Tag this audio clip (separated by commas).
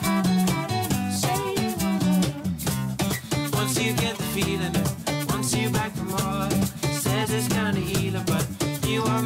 Music